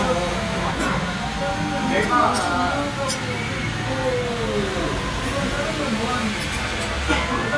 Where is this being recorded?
in a restaurant